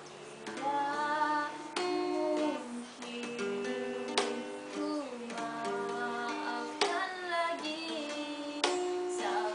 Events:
[0.01, 9.54] music
[0.35, 1.51] female speech
[1.71, 2.70] female speech
[2.90, 4.29] female speech
[4.65, 8.72] female speech

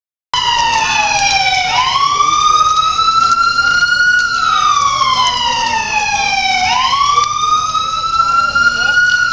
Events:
[0.31, 9.32] fire engine
[0.32, 1.18] man speaking
[2.10, 2.96] man speaking
[3.15, 4.05] man speaking
[4.33, 6.29] man speaking
[6.85, 8.98] man speaking

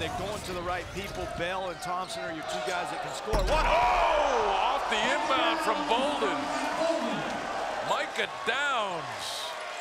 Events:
[0.00, 9.80] crowd
[8.43, 9.01] shout
[8.45, 9.02] man speaking
[9.19, 9.53] breathing

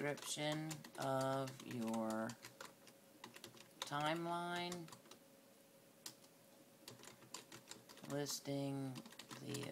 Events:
[0.00, 9.71] mechanisms
[6.46, 6.58] generic impact sounds
[9.37, 9.71] male speech

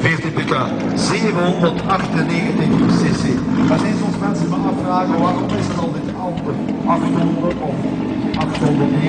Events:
[0.00, 0.65] man speaking
[0.00, 9.05] car
[0.00, 9.05] conversation
[0.00, 9.05] medium engine (mid frequency)
[0.90, 2.60] man speaking
[2.81, 3.28] man speaking
[2.85, 3.22] vroom
[3.43, 3.88] vroom
[3.58, 6.48] man speaking
[4.07, 4.17] generic impact sounds
[5.46, 5.84] vroom
[6.29, 6.41] generic impact sounds
[6.62, 6.71] generic impact sounds
[6.81, 7.67] man speaking
[7.42, 7.54] generic impact sounds
[8.30, 8.39] generic impact sounds
[8.30, 9.05] man speaking
[8.50, 8.57] generic impact sounds

